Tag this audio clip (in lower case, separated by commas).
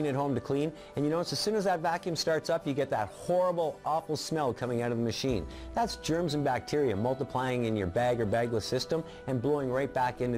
music, speech